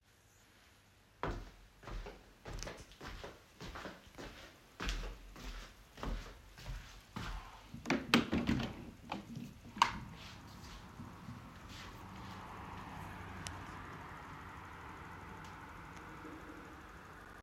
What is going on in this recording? I walked to the window in my room and opened it.